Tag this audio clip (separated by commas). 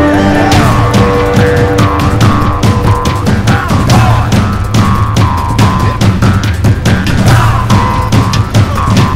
Music